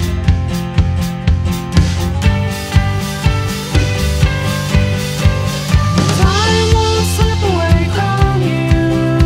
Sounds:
music

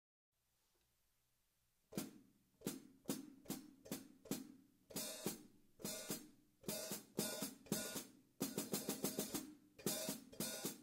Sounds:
hi-hat, music, cymbal, musical instrument

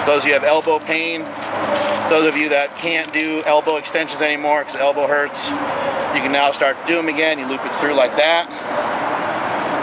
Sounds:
speech

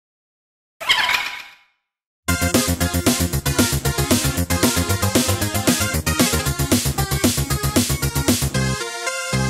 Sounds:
music

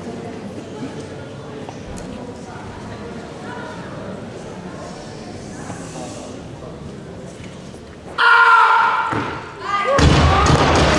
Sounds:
speech

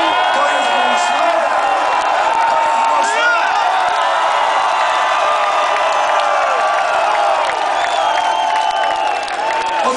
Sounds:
speech

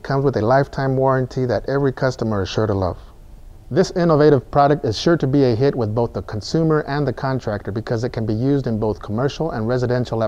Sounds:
speech

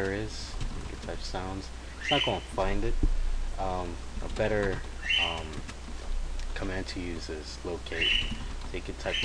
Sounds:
speech

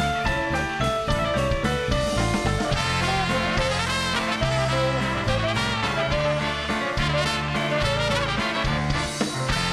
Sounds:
music

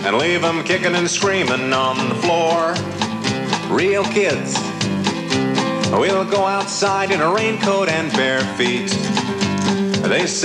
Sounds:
music, funny music

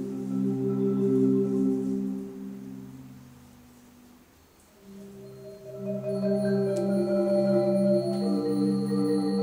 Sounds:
music, xylophone, marimba

